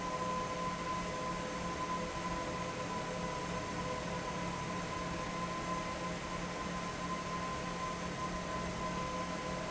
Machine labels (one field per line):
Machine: fan